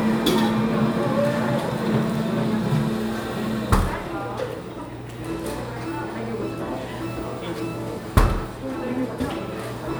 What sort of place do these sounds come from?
cafe